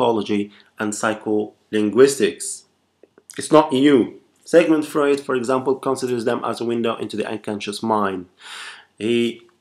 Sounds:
Speech, Male speech

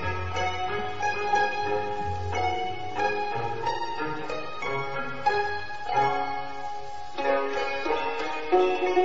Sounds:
Sitar, Music

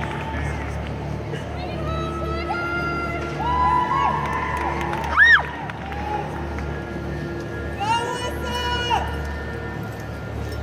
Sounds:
Speech

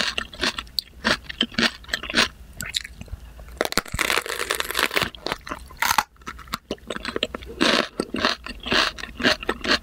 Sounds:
people slurping

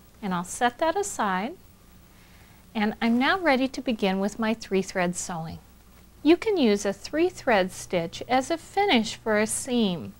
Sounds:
Speech

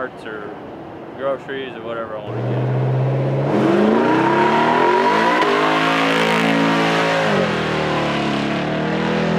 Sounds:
Vehicle, Car, auto racing

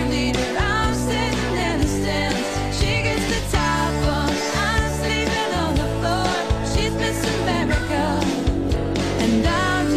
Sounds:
Music

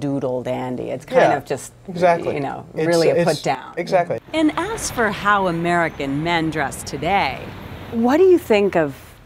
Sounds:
outside, urban or man-made, Speech

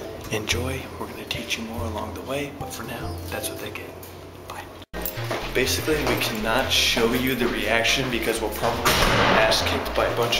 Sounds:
Speech, Music

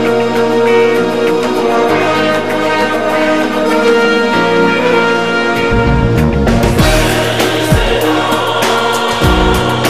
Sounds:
Music, Musical instrument

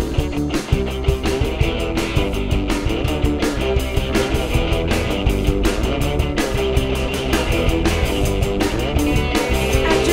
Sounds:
Music

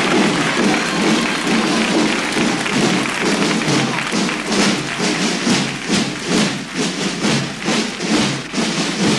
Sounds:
Music, thud

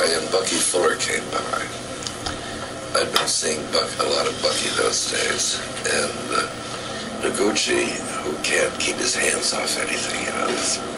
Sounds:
Speech

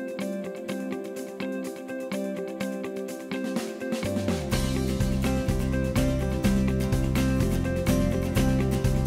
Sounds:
Music

